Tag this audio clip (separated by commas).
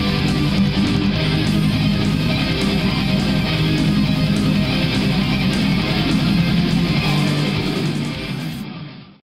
Speech, Music